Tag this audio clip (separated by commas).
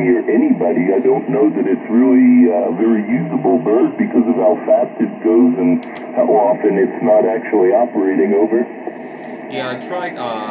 Radio, Speech